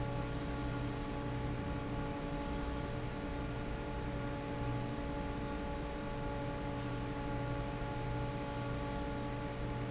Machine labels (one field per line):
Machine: fan